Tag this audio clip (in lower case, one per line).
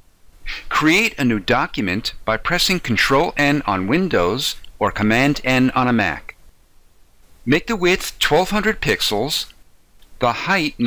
speech